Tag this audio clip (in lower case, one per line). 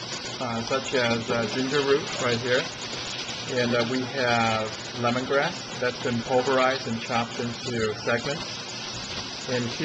speech